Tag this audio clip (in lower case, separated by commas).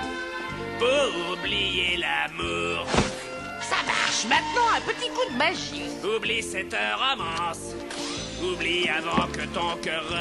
speech, music